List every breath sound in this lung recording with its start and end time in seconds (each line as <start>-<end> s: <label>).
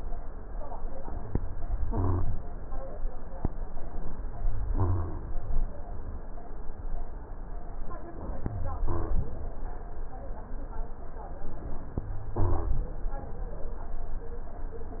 1.90-2.39 s: rhonchi
4.29-5.28 s: rhonchi
8.41-9.39 s: rhonchi
12.01-13.00 s: rhonchi